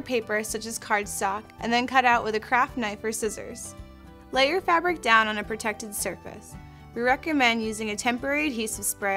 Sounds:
music
speech

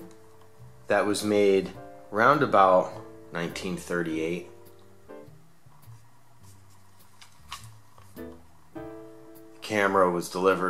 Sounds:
speech

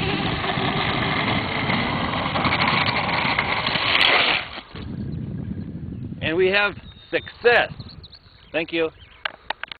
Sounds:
speech

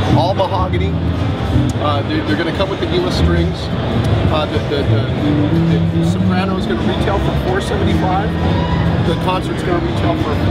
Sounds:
plucked string instrument
acoustic guitar
music
guitar
speech
musical instrument
strum

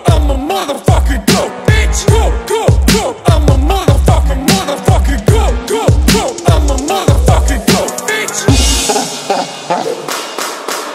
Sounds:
music

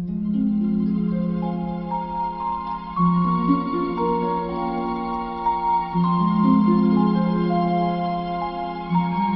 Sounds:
fiddle
musical instrument
music

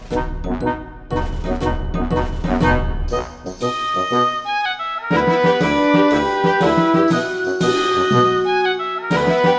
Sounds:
music

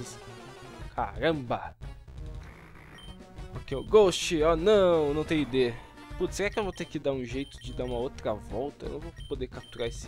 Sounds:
speech
music

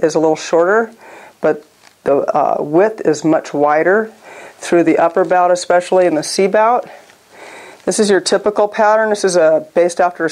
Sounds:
speech

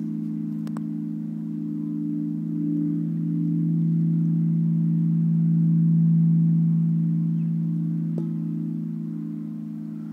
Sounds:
wind chime

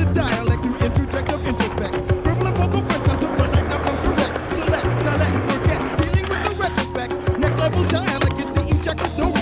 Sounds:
music

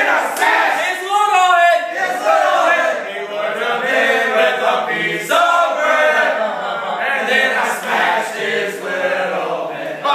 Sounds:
speech

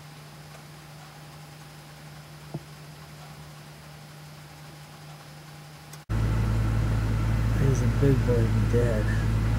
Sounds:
speech

